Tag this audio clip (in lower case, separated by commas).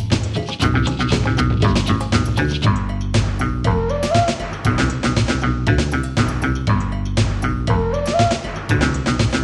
music